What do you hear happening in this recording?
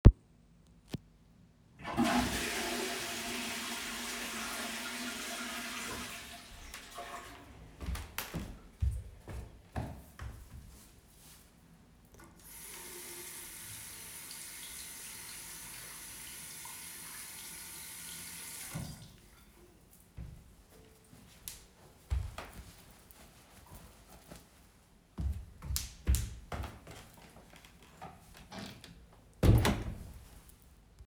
I flushed the toilet. I washed my hands and then walked towards the door. I opened the door, left the bathroom and closed the door.